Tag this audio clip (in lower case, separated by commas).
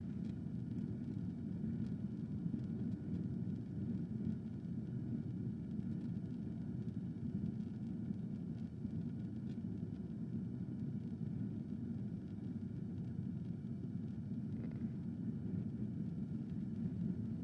fire